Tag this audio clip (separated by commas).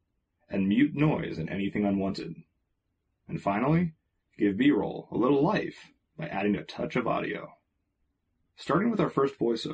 Speech